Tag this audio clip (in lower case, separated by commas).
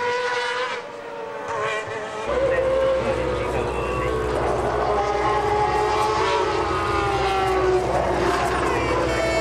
speech